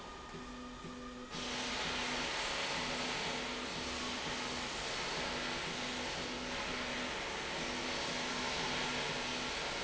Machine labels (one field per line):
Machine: slide rail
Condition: normal